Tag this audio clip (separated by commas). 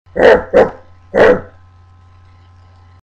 Yip